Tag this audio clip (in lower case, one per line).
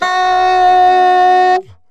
woodwind instrument
music
musical instrument